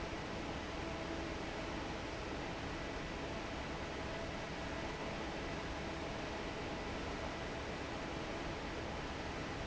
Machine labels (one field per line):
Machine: fan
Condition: normal